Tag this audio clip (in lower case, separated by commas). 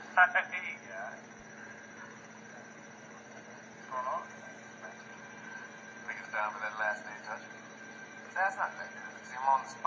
speech